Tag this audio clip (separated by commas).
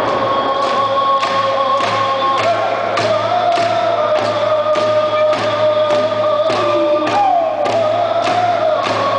Music